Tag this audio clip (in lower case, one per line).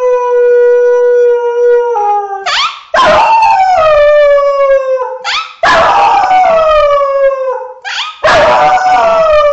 howl
animal
dog
domestic animals
bow-wow
yip